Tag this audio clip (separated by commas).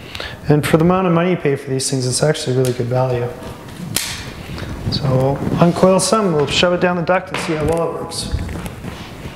Speech